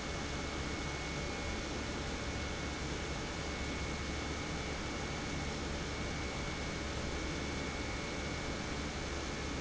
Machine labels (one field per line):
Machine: pump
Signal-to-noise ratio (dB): -6 dB